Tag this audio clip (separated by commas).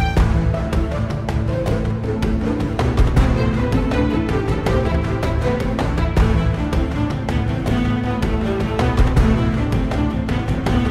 Music